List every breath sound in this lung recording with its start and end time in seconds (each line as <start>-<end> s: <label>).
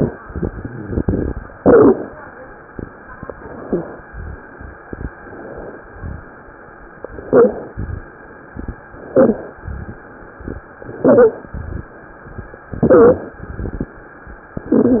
1.57-2.17 s: inhalation
3.38-4.02 s: inhalation
3.62-3.87 s: wheeze
4.06-4.42 s: exhalation
5.18-5.83 s: inhalation
5.92-6.28 s: exhalation
7.17-7.76 s: inhalation
7.76-8.10 s: exhalation
9.01-9.60 s: inhalation
9.62-10.04 s: exhalation
10.95-11.54 s: inhalation
11.55-11.97 s: exhalation
12.71-13.42 s: inhalation
13.41-14.00 s: exhalation